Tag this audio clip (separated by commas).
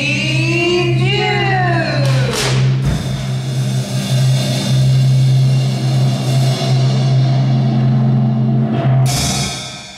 Speech, Music